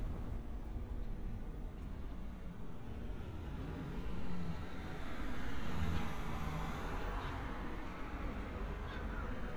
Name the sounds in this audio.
engine of unclear size